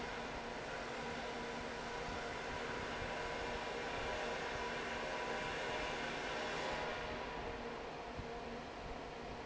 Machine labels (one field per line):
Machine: fan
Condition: normal